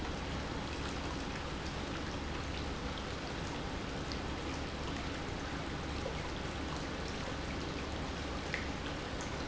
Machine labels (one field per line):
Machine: pump